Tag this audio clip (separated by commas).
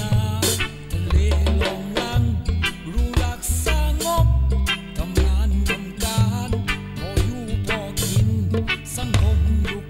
Music